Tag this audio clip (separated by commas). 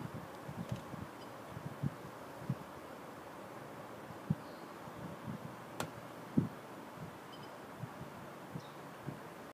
Door